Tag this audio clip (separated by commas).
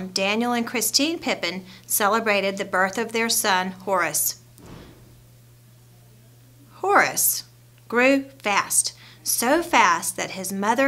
Speech